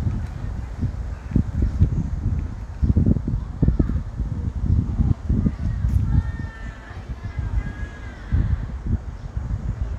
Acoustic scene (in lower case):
residential area